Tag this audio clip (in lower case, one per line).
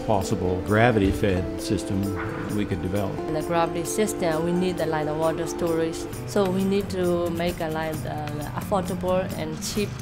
music
speech